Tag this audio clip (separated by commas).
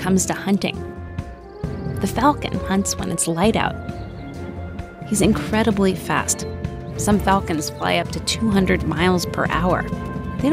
Speech, Music